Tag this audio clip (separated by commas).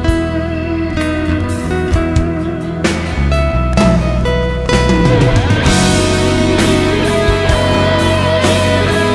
Music